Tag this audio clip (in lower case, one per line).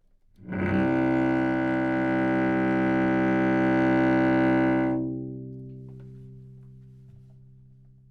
music
musical instrument
bowed string instrument